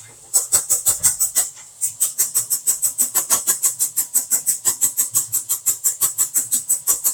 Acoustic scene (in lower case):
kitchen